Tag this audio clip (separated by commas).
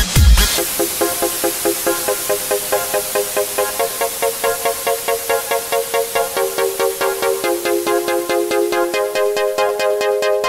Electronic dance music